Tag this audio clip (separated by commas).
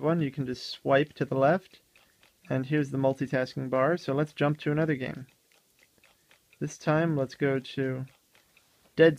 inside a small room, Speech